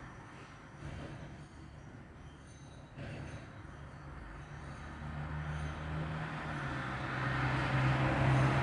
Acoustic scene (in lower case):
street